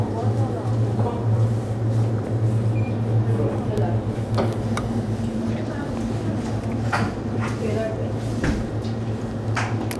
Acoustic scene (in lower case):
crowded indoor space